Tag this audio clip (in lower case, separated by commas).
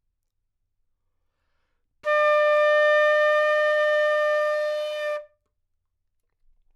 wind instrument, music, musical instrument